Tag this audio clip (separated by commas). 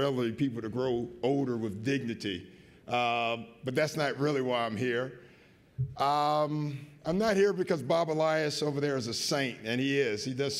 man speaking, Speech, monologue